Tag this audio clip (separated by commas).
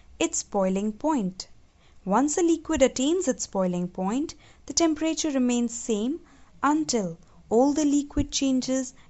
Speech